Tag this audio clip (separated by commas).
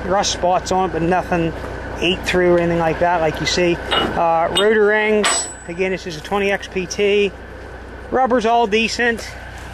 Vehicle, Speech